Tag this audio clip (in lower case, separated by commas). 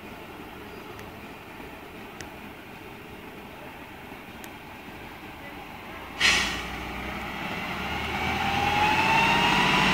speech, truck, vehicle